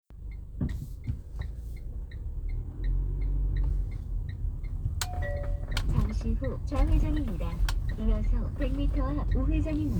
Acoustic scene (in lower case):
car